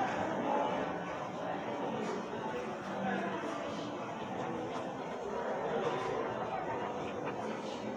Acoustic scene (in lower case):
crowded indoor space